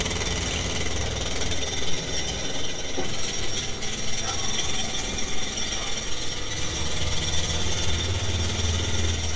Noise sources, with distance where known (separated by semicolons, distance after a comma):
jackhammer, near